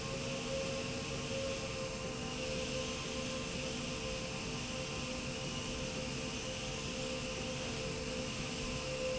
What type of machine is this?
slide rail